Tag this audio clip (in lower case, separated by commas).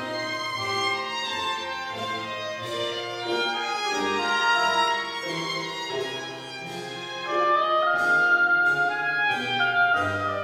musical instrument, fiddle, music